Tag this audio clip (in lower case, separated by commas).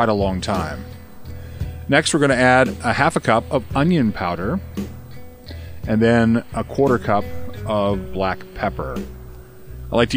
speech, music